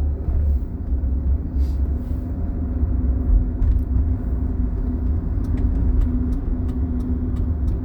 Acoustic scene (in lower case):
car